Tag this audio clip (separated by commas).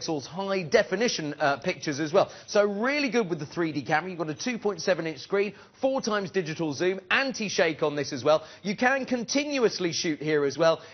Speech